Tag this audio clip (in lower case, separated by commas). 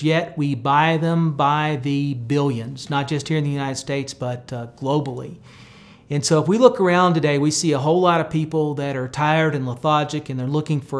speech